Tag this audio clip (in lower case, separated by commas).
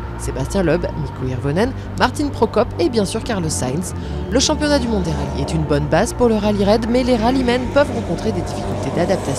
speech, music